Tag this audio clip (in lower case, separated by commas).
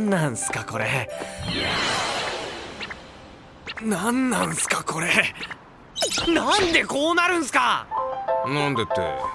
speech, music